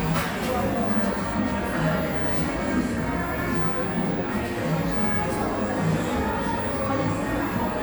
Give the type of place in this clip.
cafe